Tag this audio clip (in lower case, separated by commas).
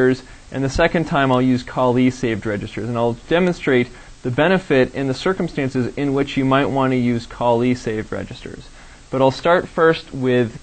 speech